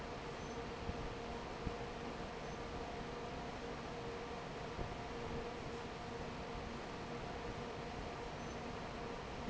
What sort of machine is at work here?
fan